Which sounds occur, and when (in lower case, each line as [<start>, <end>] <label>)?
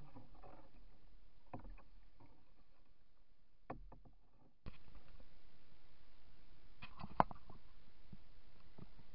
[0.00, 0.69] generic impact sounds
[0.00, 9.14] water vehicle
[0.00, 9.14] water
[0.00, 9.14] wind
[1.47, 2.73] generic impact sounds
[3.61, 4.07] generic impact sounds
[4.61, 4.74] generic impact sounds
[5.12, 5.22] generic impact sounds
[6.76, 7.58] generic impact sounds
[8.73, 8.94] generic impact sounds